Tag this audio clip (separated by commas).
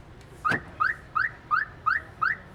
Car, Vehicle, Motor vehicle (road), Alarm